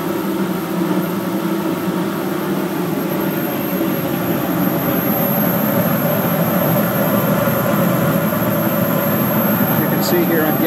A vehicle running and a man speaking